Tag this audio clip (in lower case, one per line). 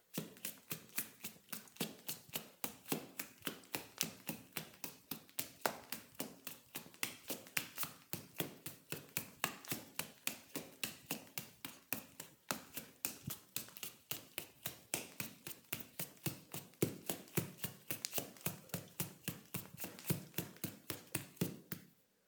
run